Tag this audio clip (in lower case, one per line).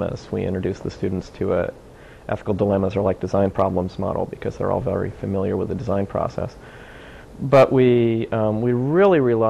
speech